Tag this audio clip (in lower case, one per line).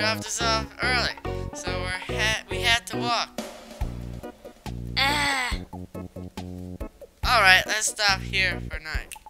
music
speech